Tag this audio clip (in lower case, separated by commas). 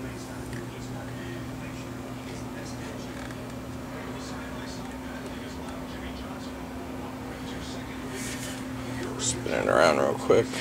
speech